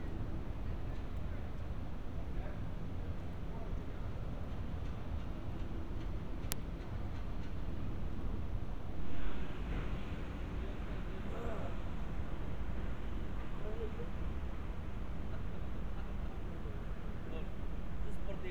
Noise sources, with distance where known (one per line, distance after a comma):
unidentified human voice